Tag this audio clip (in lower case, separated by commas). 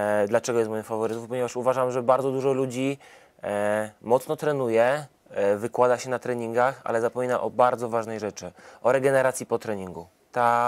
speech